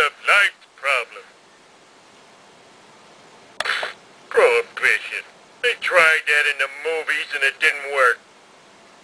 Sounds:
Speech

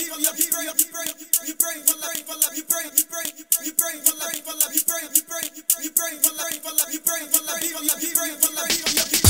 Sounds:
Music

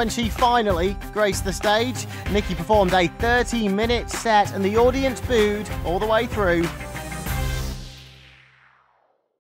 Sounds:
Music, Speech

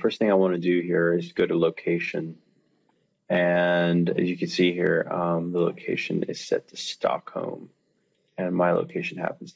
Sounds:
Speech

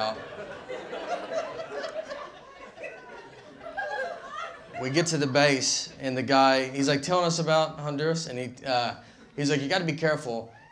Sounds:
inside a large room or hall, Speech

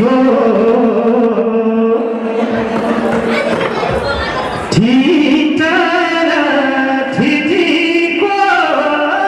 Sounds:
Male singing, Music, Speech

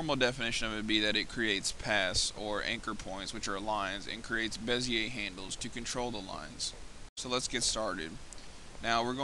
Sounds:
Speech

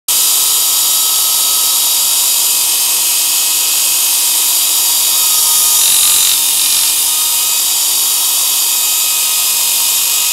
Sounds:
inside a small room, Tools

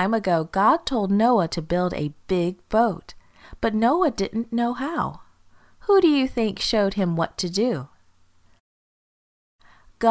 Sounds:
Speech

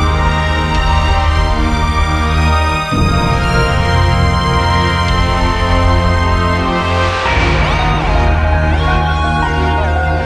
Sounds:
Music, Theme music

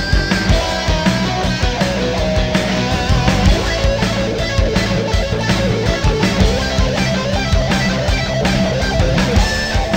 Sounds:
Music, Progressive rock

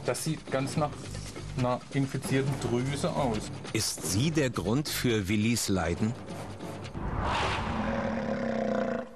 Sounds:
inside a small room, Music, Animal, Speech, Roar

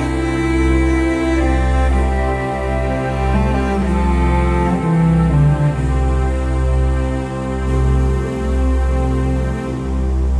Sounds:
Music

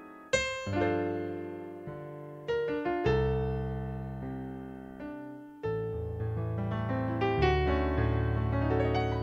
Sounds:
Jazz, Music

